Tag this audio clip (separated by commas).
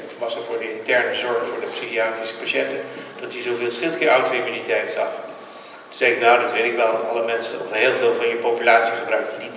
Speech